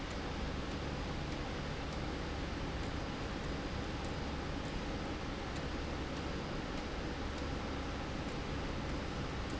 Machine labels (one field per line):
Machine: slide rail